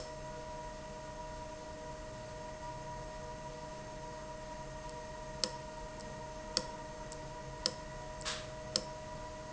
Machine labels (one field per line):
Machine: valve